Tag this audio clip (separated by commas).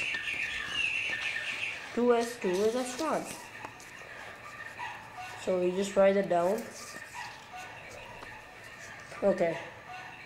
Bird, bird call, Chirp